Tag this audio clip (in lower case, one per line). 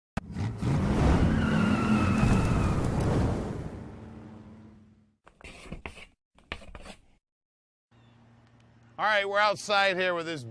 vehicle
speech